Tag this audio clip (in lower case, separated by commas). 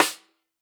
snare drum, music, percussion, drum, musical instrument